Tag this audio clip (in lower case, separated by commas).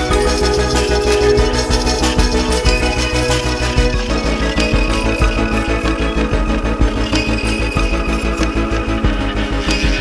music